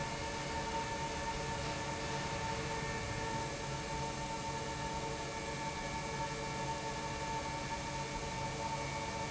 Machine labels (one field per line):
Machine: pump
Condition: normal